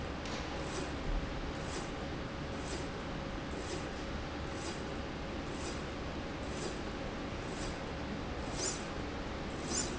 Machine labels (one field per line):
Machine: slide rail